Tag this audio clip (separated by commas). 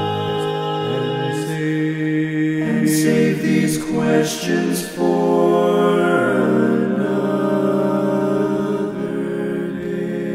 Music, Lullaby